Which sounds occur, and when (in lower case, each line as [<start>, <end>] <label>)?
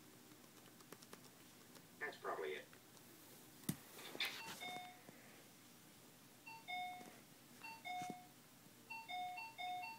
[0.00, 9.95] mechanisms
[0.00, 9.95] television
[0.24, 1.78] computer keyboard
[1.96, 2.65] man speaking
[2.66, 2.76] walk
[2.90, 3.01] walk
[3.58, 3.76] generic impact sounds
[3.99, 4.48] surface contact
[4.35, 5.06] doorbell
[4.48, 4.87] walk
[5.01, 5.13] walk
[6.38, 7.19] doorbell
[6.92, 7.17] walk
[7.59, 8.33] doorbell
[7.95, 8.15] walk
[8.85, 9.95] doorbell